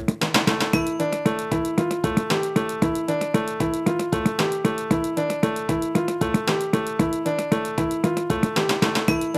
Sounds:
music

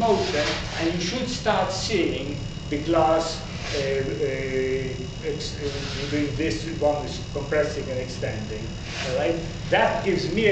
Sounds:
speech

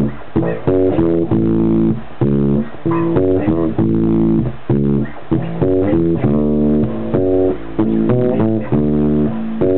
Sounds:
blues
musical instrument
music
bass guitar
plucked string instrument
guitar

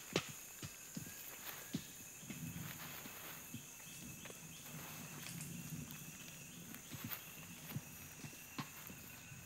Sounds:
chimpanzee pant-hooting

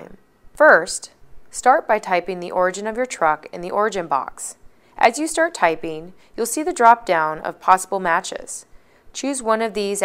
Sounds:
speech

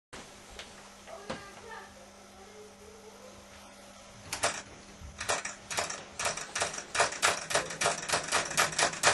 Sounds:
speech

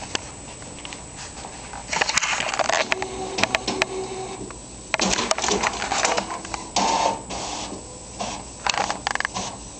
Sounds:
printer

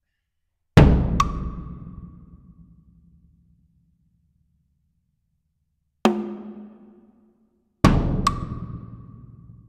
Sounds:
wood block
drum
percussion

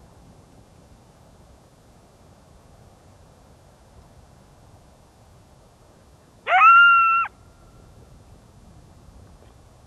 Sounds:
coyote howling

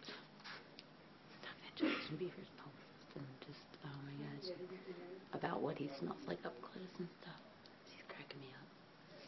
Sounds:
speech

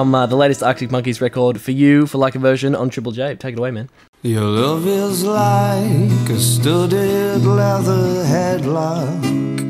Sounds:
singing
music
speech

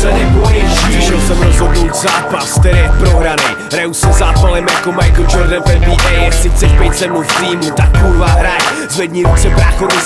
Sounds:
music

